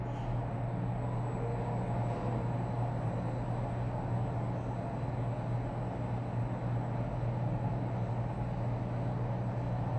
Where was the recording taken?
in an elevator